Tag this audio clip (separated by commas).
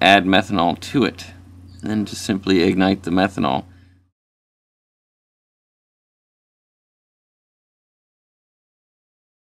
inside a small room, Silence, Speech